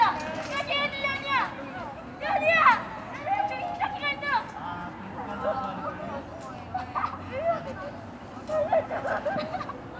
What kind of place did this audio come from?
residential area